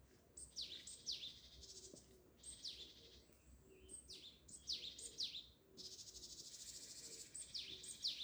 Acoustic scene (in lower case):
park